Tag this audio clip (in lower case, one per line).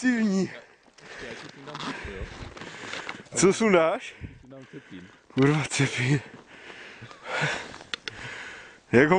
speech